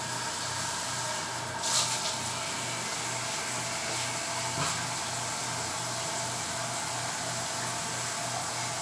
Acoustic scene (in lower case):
restroom